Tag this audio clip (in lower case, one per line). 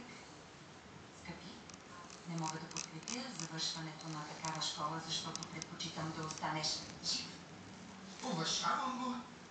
speech